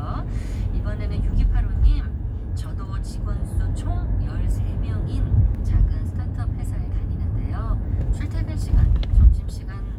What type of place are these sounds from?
car